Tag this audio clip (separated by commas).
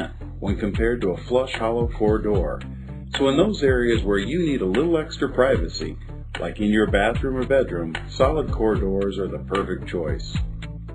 Speech, Music